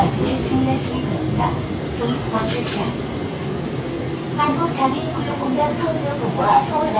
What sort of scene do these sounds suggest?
subway train